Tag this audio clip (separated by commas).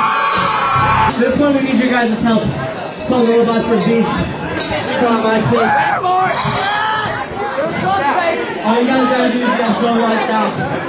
Speech, Music, Chatter